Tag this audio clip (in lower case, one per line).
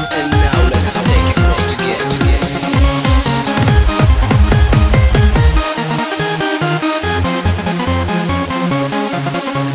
trance music
electronic music
techno
electronic dance music
dubstep
music
electronica